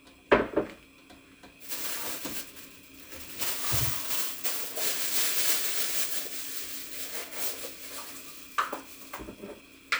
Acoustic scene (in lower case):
kitchen